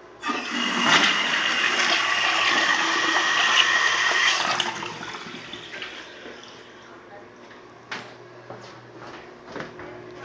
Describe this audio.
A toilet flushes followed by footsteps